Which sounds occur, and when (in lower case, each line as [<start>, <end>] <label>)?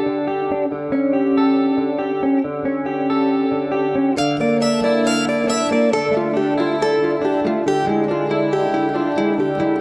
[0.00, 9.80] effects unit
[0.00, 9.80] music